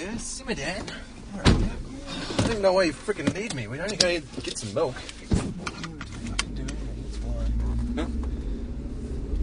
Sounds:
speech

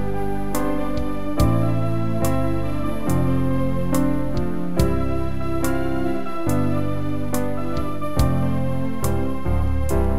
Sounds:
playing electronic organ

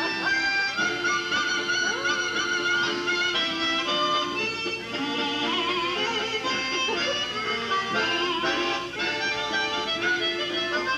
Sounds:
music, harmonica

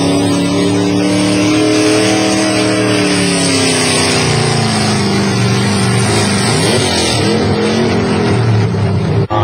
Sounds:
truck, vehicle

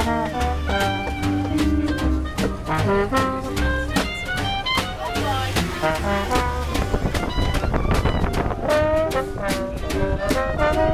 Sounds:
music, speech, jazz

